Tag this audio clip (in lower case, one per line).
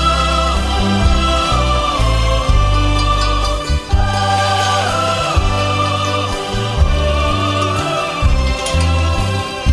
music